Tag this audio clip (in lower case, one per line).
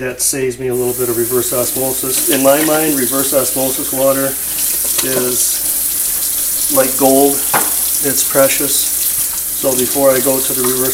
sink (filling or washing)
water
water tap